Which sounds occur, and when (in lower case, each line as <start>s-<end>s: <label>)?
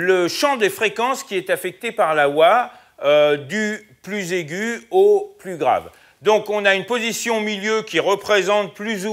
0.0s-2.7s: male speech
0.0s-9.1s: background noise
2.7s-2.9s: breathing
3.0s-3.9s: male speech
3.8s-4.0s: breathing
4.0s-5.9s: male speech
5.9s-6.2s: breathing
6.2s-9.1s: male speech